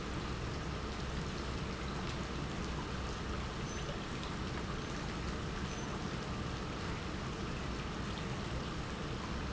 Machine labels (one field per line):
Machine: pump